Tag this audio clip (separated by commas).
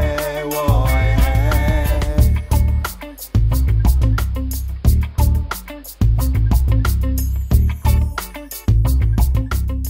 Music